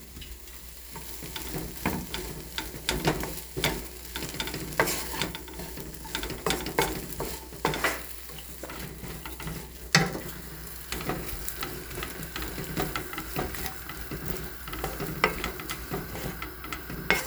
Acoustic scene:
kitchen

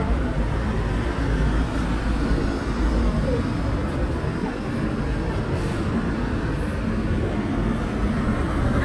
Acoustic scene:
street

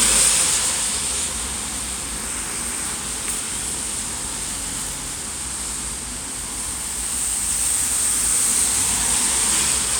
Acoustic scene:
street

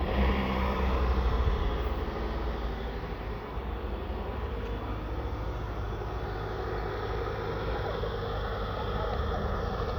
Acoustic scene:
residential area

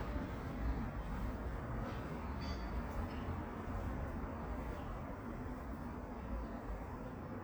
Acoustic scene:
residential area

